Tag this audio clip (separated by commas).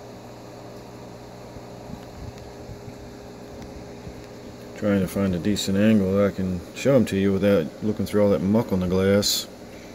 Mechanical fan